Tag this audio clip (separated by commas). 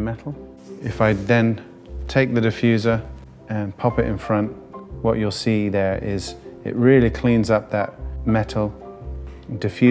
Speech, Music